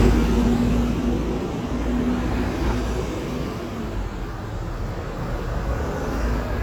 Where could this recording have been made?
on a street